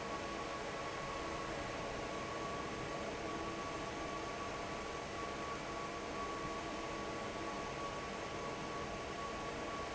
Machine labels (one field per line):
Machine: fan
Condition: normal